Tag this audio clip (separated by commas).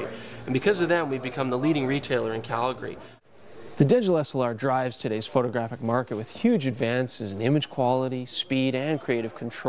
Speech